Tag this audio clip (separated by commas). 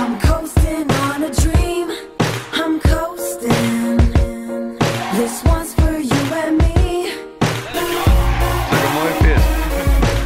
Speech, Music